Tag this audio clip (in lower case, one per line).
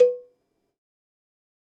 bell
cowbell